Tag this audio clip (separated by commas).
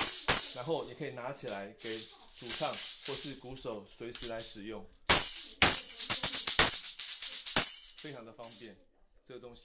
playing tambourine